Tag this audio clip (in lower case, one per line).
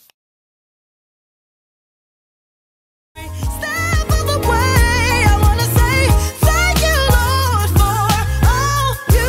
music
pop music